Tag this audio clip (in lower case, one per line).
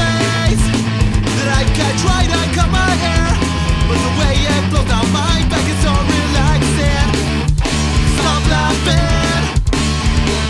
rock and roll
music